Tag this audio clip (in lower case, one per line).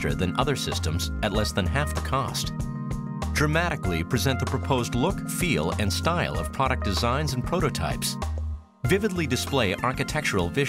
speech
music